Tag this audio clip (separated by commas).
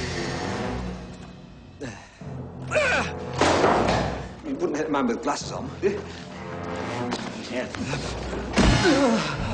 Speech, inside a small room, Music, Slam